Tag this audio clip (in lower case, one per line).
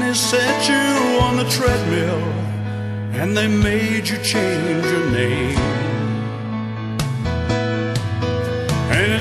music